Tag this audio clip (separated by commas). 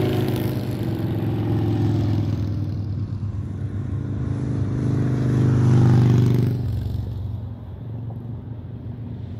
Motor vehicle (road)